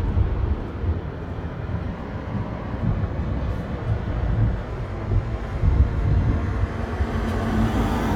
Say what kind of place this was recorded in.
residential area